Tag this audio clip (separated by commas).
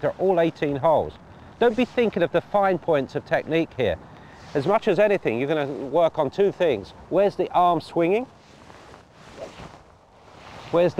Speech